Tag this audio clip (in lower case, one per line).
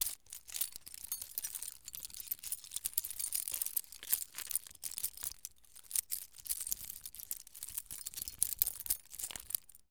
keys jangling
home sounds